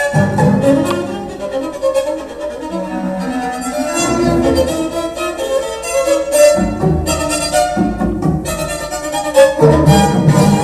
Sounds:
music, musical instrument, violin

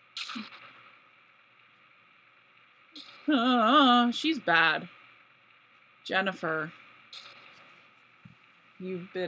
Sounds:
speech

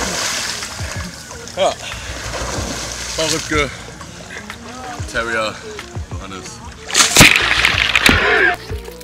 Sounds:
speech, water, splashing water, splash, music

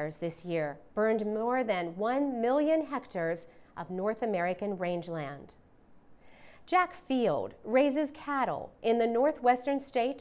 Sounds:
speech

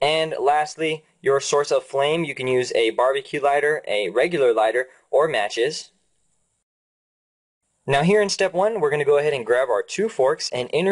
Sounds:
speech

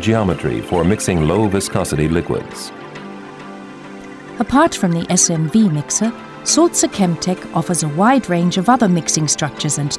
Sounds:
music, speech

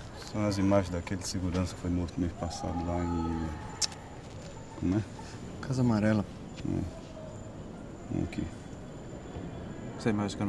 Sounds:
speech

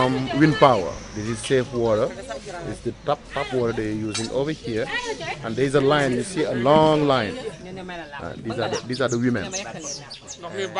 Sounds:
speech

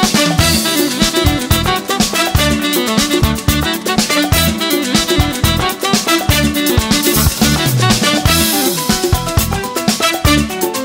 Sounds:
music, musical instrument, saxophone, woodwind instrument

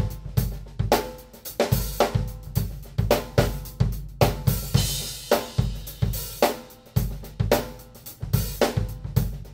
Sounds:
hi-hat, music, drum, drum kit, musical instrument

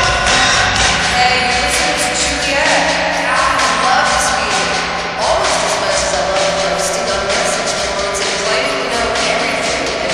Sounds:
speech, music

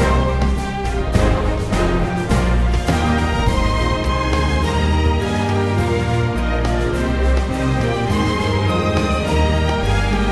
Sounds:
music

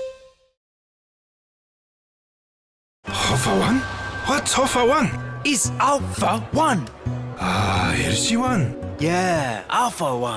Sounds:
speech, music

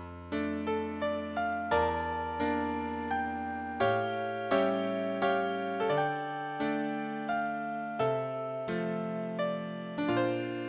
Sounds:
music

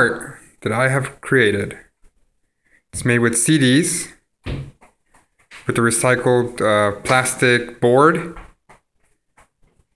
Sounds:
speech

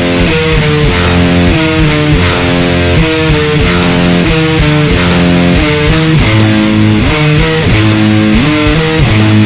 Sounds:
plucked string instrument, strum, guitar, musical instrument, electric guitar, music

